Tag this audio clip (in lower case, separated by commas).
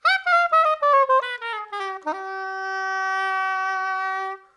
music, musical instrument, wind instrument